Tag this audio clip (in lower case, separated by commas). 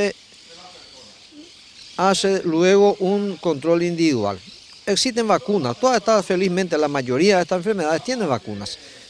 speech